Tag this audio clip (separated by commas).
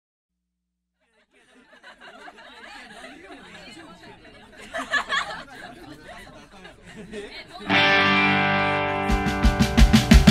Speech, Music